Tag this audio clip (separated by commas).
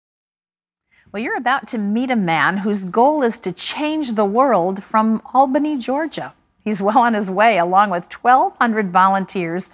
Speech